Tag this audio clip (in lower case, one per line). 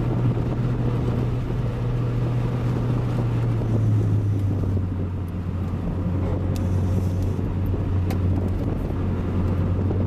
vehicle
motor vehicle (road)
car